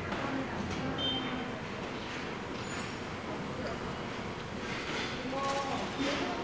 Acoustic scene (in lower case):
subway station